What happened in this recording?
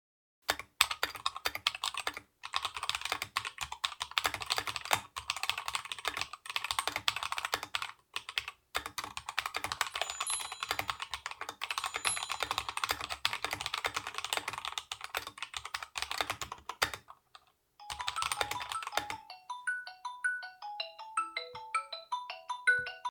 I was working when my friends texted/called me to run some errands